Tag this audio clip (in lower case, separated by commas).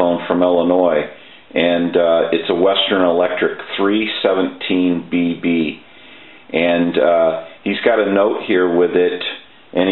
speech